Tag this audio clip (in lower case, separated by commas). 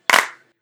hands, clapping